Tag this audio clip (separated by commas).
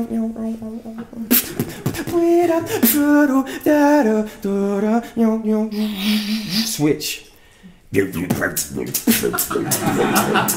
Speech, inside a large room or hall, Beatboxing